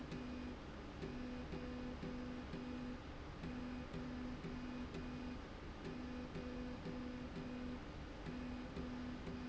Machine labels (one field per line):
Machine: slide rail